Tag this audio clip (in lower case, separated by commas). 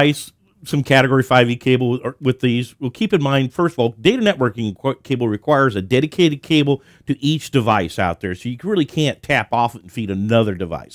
speech